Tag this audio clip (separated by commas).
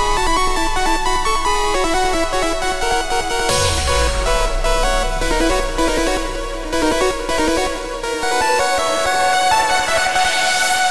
Music, Musical instrument